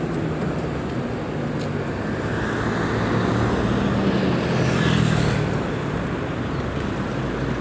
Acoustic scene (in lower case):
street